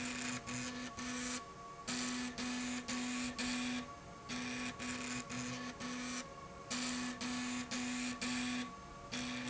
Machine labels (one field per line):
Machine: slide rail